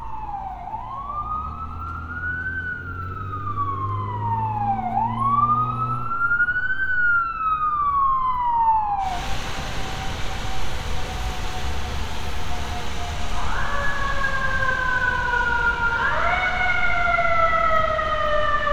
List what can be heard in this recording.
siren